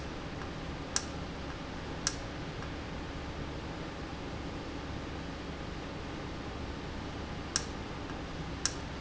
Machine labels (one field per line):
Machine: valve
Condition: normal